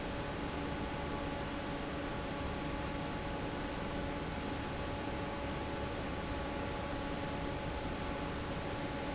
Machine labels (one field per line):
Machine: fan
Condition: normal